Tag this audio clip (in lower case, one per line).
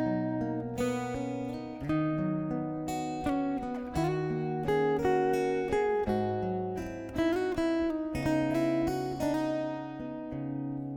musical instrument
electric guitar
acoustic guitar
music
strum
plucked string instrument
guitar